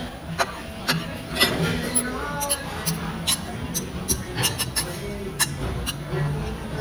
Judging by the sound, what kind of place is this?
restaurant